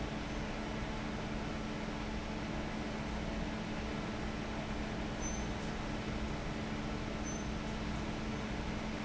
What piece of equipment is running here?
fan